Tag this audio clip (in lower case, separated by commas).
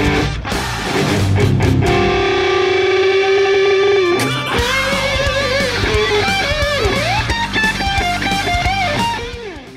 plucked string instrument, music, guitar, musical instrument